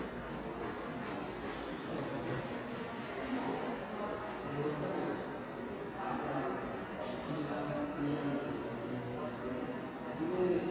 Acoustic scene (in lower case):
subway station